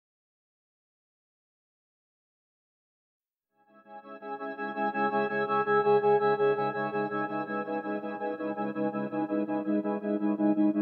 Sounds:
Keyboard (musical), Piano

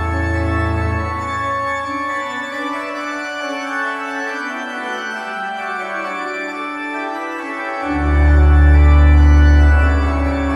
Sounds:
playing electronic organ

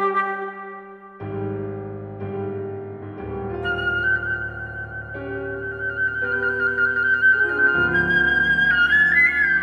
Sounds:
Music

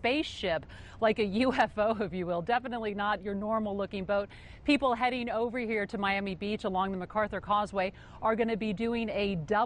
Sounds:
Speech

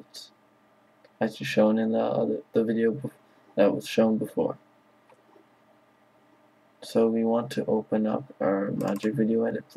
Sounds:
Speech

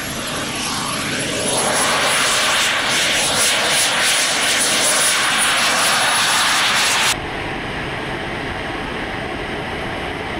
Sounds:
airplane flyby

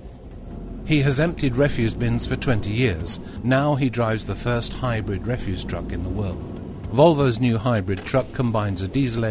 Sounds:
Vehicle, Speech

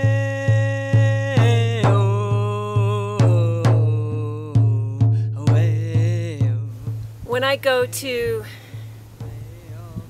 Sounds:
Music, Speech

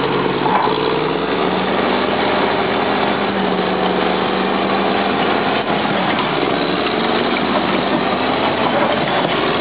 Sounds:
Vehicle, Truck

